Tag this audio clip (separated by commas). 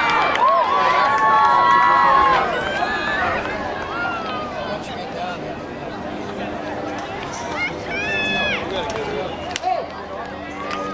outside, urban or man-made, Run, Speech